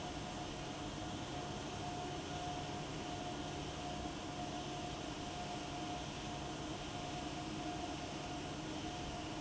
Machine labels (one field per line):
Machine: fan